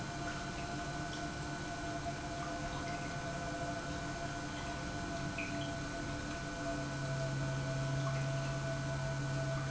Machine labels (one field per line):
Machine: pump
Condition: normal